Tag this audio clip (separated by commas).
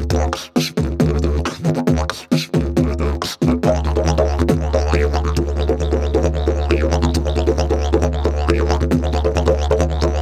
playing didgeridoo